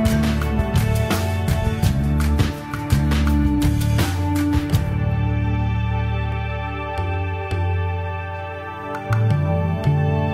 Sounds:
Music, inside a small room, New-age music

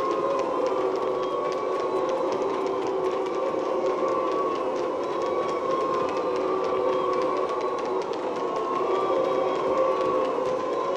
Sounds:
people booing

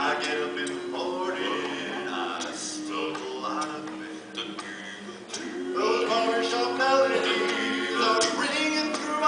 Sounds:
Male singing

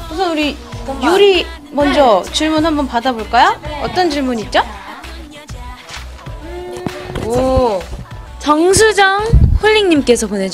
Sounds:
Speech, Music

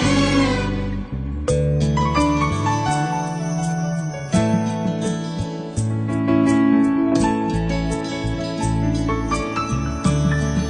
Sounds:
Violin, Musical instrument, Music

